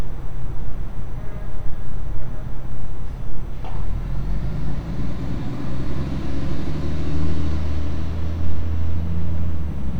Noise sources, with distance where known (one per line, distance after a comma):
large-sounding engine, near